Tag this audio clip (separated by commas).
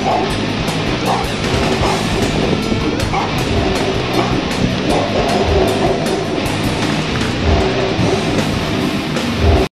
Bow-wow, Music